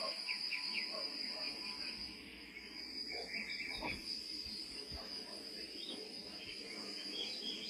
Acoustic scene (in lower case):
park